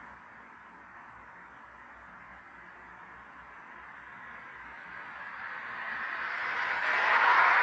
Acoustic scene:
street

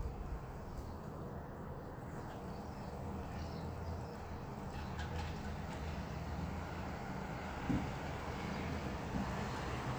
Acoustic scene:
residential area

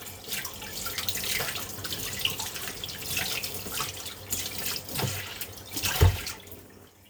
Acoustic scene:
kitchen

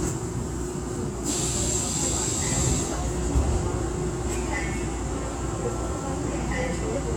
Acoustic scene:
subway train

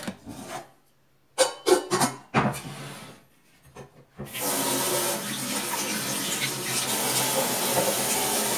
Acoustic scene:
kitchen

